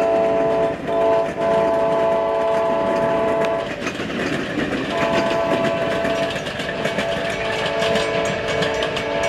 Railroad train hitting the track while blowing the air horn